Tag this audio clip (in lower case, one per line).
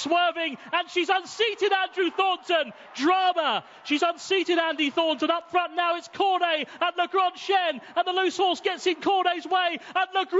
speech